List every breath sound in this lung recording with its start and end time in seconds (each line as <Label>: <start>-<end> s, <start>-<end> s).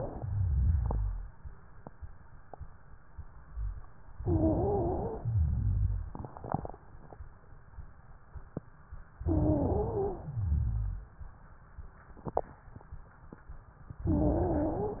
Inhalation: 4.20-5.24 s, 9.26-10.24 s, 14.06-15.00 s
Exhalation: 0.02-1.31 s, 5.24-6.21 s, 10.24-11.11 s
Wheeze: 4.20-5.24 s, 9.26-10.24 s, 14.06-15.00 s
Rhonchi: 0.02-1.31 s, 5.24-6.21 s, 10.24-11.11 s